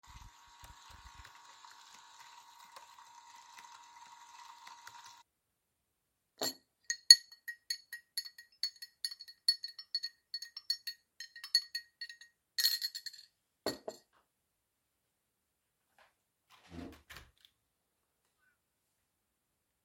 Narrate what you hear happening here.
I was working on my laptop while I was brewing coffee on the coffee machine. When the coffee was done I stopped stirred the coffee, and opened the window to let some fresh air in.